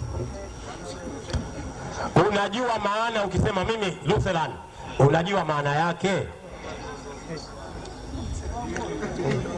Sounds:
Speech

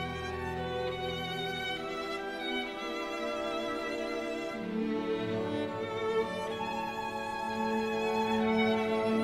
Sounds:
Music, Musical instrument, fiddle

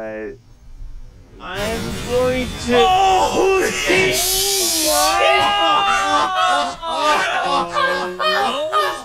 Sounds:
Speech

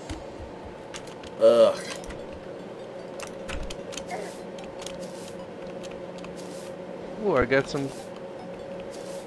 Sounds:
Speech

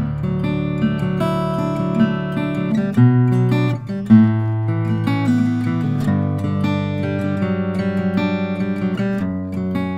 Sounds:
Musical instrument, Plucked string instrument, Strum, Guitar, Music, Acoustic guitar

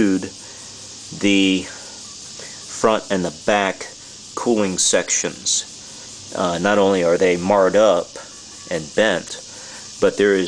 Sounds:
inside a large room or hall, Speech

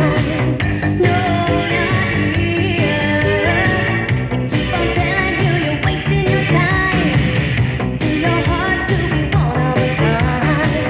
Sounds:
Pop music, Music

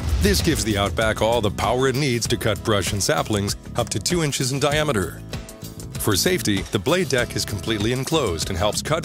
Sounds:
Speech, Music

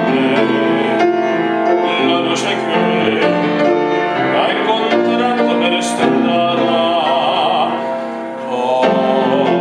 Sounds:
Music, Male singing

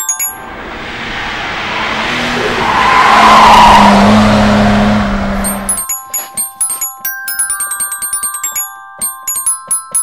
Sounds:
Mallet percussion, Glockenspiel, Marimba

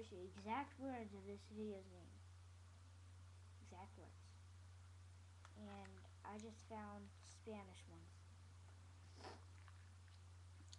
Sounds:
inside a small room, Speech

